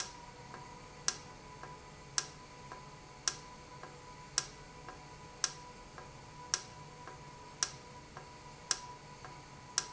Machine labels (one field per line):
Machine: valve